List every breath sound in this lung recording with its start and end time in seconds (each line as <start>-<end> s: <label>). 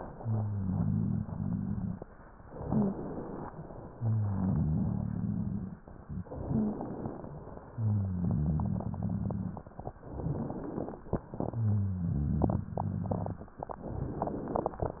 0.00-2.03 s: exhalation
0.00-2.03 s: rhonchi
2.53-3.50 s: inhalation
3.57-5.80 s: exhalation
3.89-5.78 s: rhonchi
6.28-7.63 s: inhalation
7.71-9.90 s: exhalation
7.77-9.66 s: rhonchi
10.02-11.16 s: inhalation
11.32-13.51 s: exhalation
11.54-13.43 s: rhonchi
13.79-15.00 s: inhalation